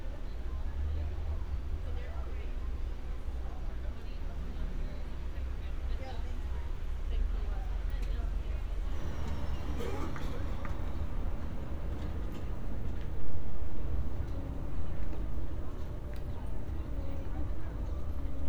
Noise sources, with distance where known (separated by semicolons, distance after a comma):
person or small group talking